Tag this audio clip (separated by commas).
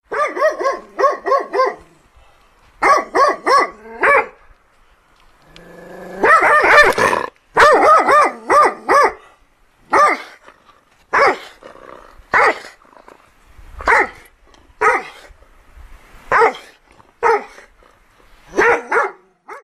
Dog, Domestic animals, Bark, Animal, Growling